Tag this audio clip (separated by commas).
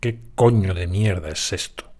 Human voice